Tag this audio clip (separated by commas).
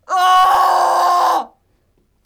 Screaming, Human voice